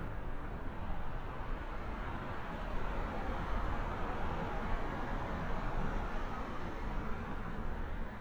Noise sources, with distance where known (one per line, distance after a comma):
medium-sounding engine